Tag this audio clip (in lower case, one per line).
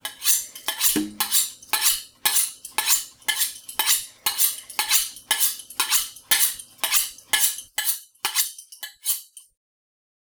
cutlery
home sounds